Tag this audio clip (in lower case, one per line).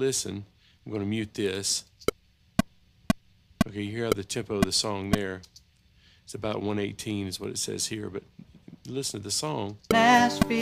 speech